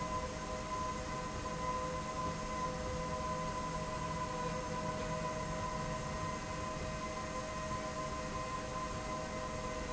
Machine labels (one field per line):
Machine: slide rail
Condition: normal